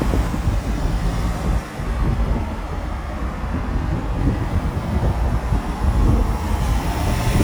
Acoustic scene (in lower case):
street